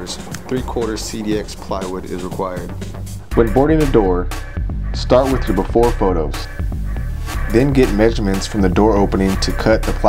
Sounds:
Music, Speech

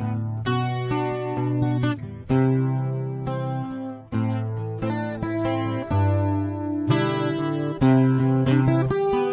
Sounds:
Musical instrument, Guitar, Music, Acoustic guitar, Strum, Plucked string instrument

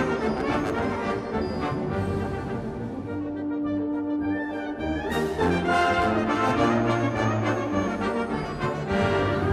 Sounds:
Music

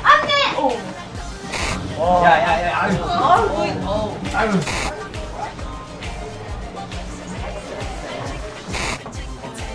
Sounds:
Music, Speech

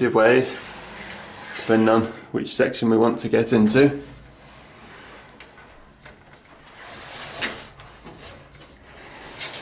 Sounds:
Sliding door, inside a small room, Speech

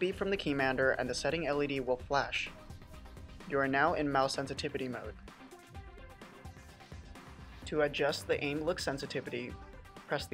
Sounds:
Music, Speech

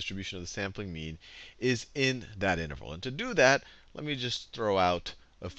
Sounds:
Speech

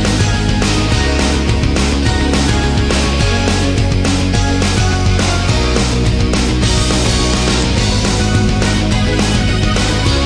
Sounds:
Music

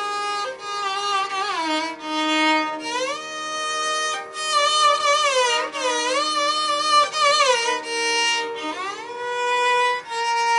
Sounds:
fiddle, Musical instrument, Music

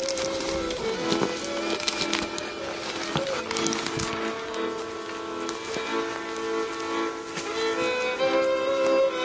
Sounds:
Sad music, Music

